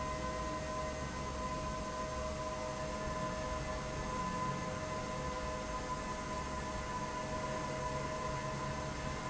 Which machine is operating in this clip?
fan